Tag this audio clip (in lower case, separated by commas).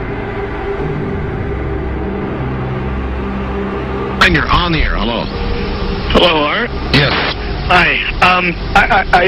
music, speech